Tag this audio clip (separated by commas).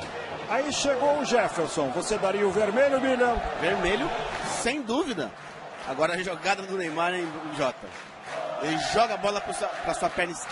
Speech